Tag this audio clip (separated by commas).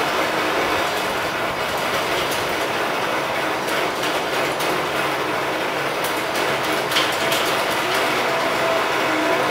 inside a small room